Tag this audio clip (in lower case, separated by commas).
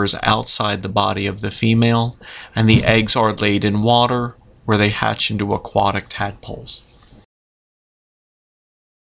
speech